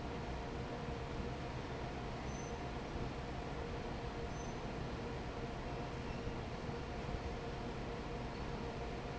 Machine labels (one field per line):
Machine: fan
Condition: normal